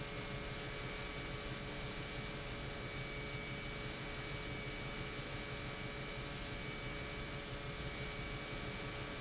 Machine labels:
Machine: pump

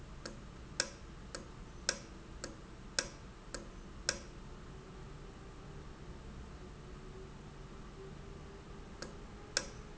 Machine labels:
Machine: valve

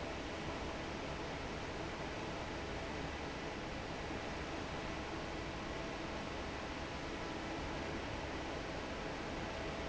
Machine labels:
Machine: fan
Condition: normal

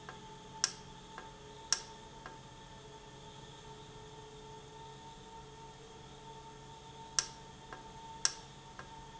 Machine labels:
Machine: valve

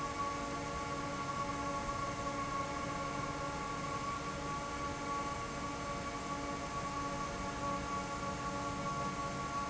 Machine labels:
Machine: fan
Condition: normal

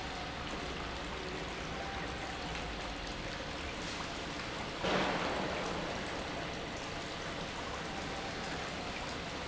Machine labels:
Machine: pump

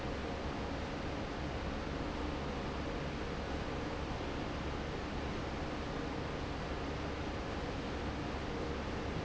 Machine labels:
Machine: fan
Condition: normal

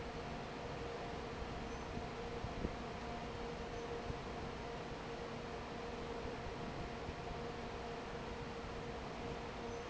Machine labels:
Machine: fan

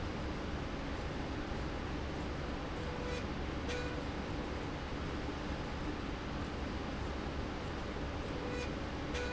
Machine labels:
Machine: slide rail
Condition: normal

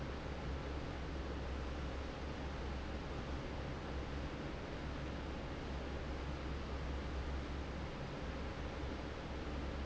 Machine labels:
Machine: fan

